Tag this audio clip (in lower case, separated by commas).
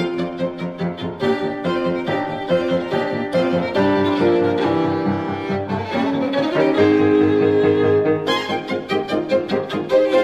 bowed string instrument, fiddle